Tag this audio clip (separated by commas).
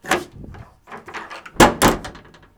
home sounds, Door, Slam